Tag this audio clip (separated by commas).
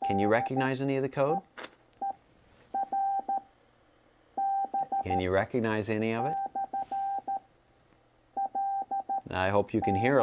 Speech, inside a small room